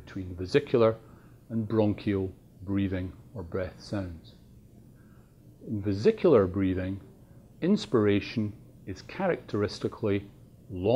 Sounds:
Speech

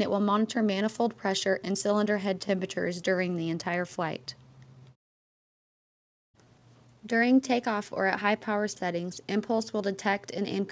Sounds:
Speech

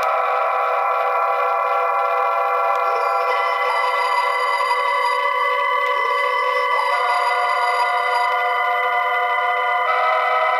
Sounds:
Music, inside a small room

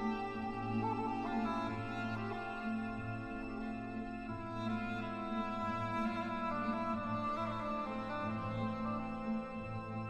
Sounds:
Music, Cello

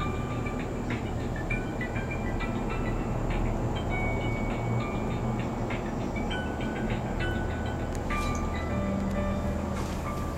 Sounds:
Music

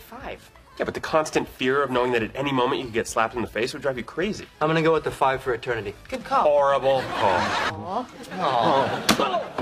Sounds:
people slapping

